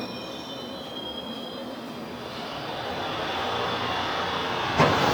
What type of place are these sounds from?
subway station